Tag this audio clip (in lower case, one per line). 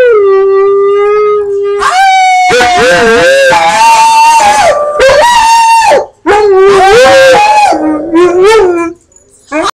pets
howl
animal
canids
dog